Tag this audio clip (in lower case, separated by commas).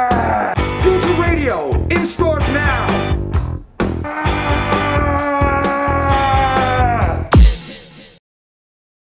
speech, music